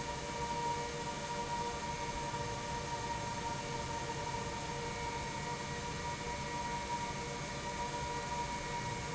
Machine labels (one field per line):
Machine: pump